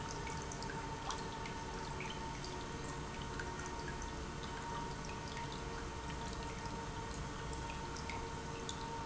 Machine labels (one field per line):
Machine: pump